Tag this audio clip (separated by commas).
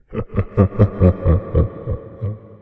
Laughter, Human voice